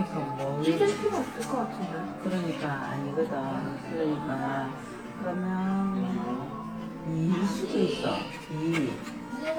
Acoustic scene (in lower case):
crowded indoor space